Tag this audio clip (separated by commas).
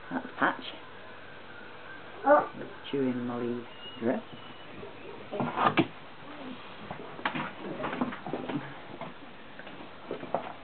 Domestic animals, Speech, Dog, Animal, Yip